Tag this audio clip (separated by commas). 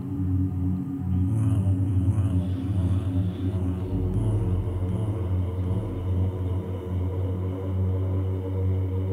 Music